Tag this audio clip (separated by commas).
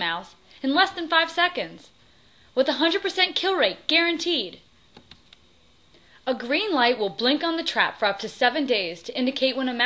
Speech